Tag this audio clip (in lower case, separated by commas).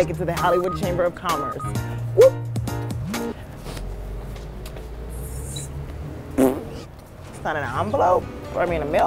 walk, speech, music